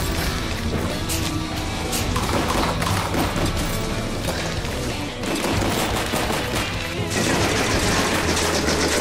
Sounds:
Gunshot, Machine gun

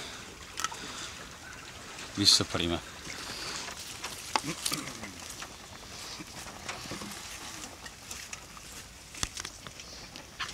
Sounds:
Speech

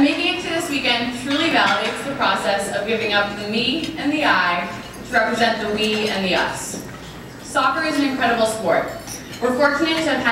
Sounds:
monologue, Speech, woman speaking

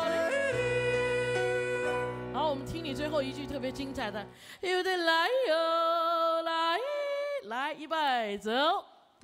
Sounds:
yodelling

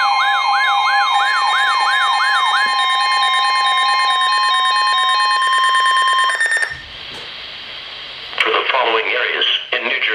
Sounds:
Speech

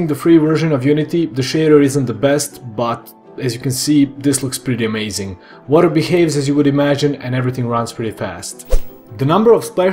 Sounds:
Speech, Music

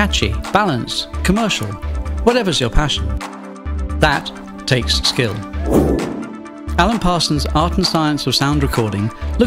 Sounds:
Speech, Music

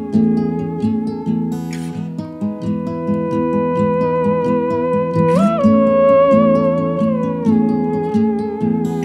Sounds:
playing theremin

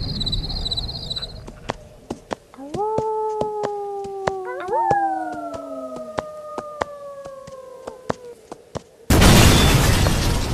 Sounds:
pets

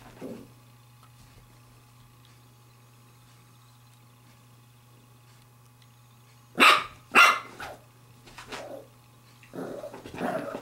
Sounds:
Bark, Dog, Domestic animals, Animal, dog barking

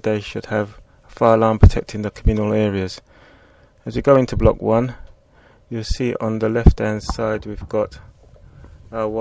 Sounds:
Speech

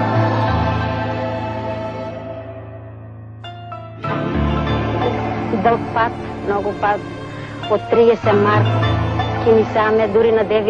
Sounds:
Music, Speech, Theme music

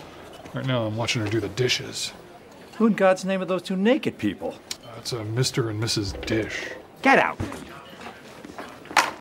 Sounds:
Speech

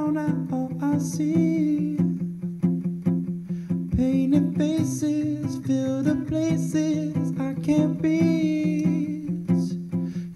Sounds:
Music

